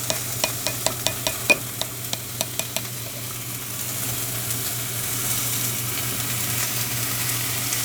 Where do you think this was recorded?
in a kitchen